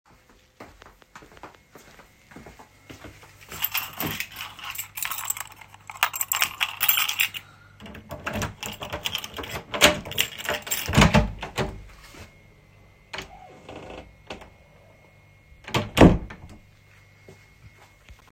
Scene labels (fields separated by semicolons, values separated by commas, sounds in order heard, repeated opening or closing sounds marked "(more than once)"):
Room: hallway; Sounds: footsteps, keys, door (more than once)